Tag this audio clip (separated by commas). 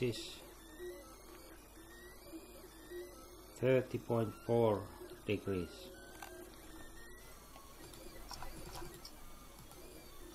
Speech